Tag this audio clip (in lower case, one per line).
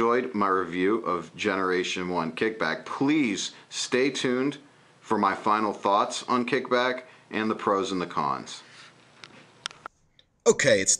speech